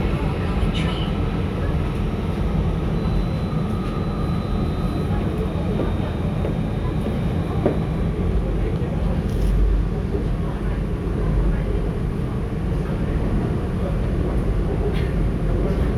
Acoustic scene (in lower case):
subway train